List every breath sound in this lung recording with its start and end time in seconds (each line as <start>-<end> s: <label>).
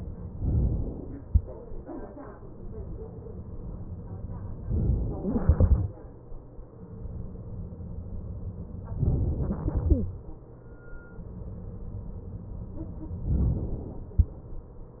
0.36-1.27 s: inhalation
4.67-5.33 s: inhalation
5.33-6.32 s: exhalation
8.90-9.68 s: inhalation
9.68-10.85 s: exhalation
13.36-14.22 s: inhalation